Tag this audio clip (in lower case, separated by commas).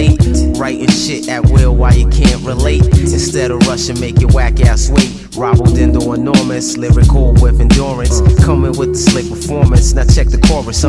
music, progressive rock, rhythm and blues